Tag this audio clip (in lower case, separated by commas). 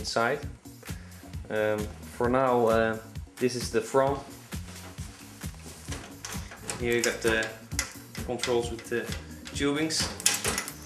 music, speech